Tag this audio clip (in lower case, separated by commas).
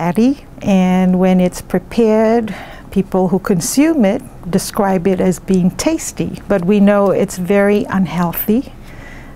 speech